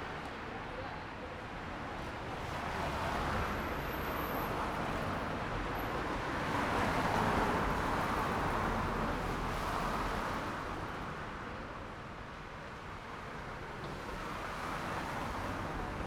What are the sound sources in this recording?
car, car wheels rolling, people talking